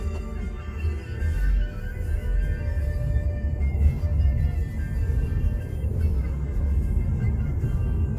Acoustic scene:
car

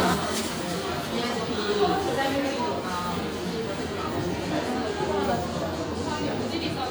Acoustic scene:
cafe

